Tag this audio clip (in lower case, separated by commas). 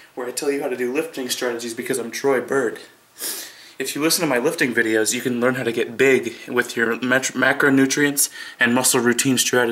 speech